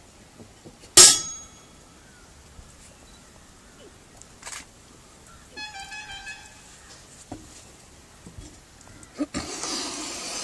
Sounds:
inside a small room

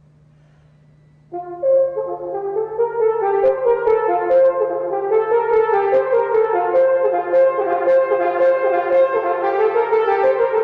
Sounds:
playing french horn

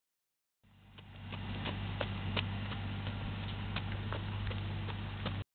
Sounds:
Animal, Horse, Clip-clop

